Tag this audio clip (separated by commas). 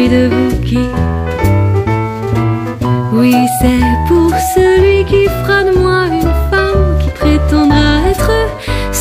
Music